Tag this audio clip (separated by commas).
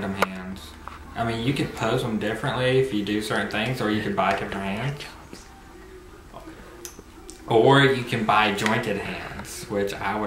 inside a small room, Speech